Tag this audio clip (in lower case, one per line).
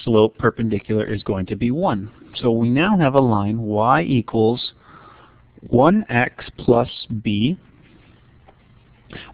speech